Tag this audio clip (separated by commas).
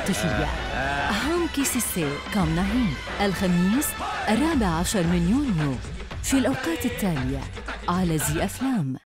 Speech, Music